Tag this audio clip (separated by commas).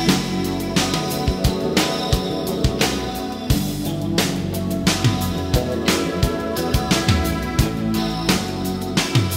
Music